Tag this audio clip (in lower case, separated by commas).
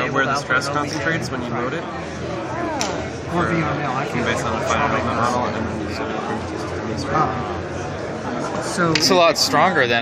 speech